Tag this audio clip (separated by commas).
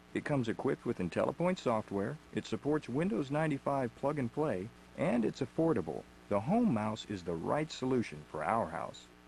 Speech